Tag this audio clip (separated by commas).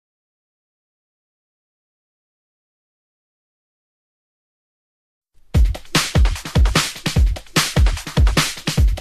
Drum and bass, House music, Music